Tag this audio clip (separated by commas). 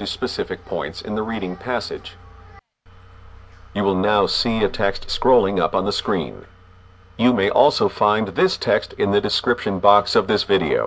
Speech